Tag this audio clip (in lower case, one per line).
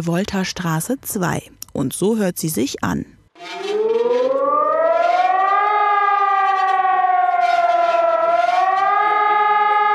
civil defense siren